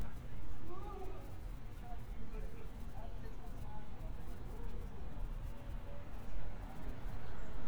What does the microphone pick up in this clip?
unidentified human voice